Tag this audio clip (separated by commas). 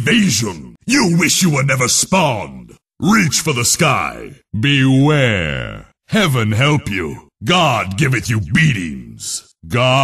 Speech